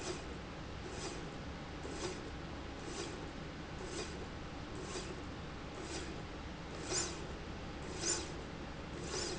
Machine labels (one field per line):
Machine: slide rail